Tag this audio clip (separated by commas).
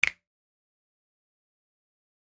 Hands, Finger snapping